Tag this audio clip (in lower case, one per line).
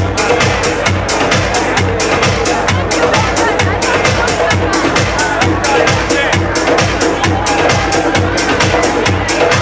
electronica
music
speech